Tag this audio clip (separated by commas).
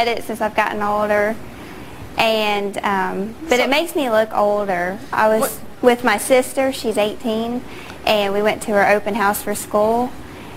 Female speech